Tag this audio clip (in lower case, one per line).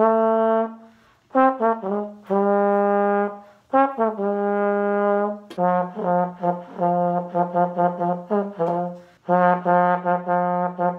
playing trombone